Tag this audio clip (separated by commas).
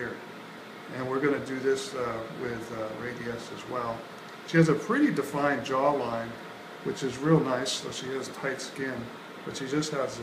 Speech